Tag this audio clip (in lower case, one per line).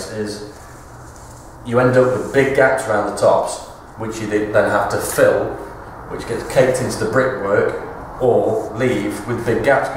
speech